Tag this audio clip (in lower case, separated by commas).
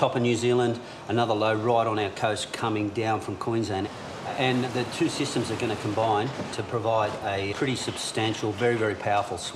waves, speech